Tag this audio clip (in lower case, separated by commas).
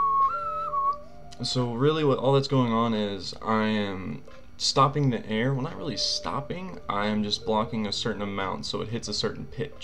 speech, whistling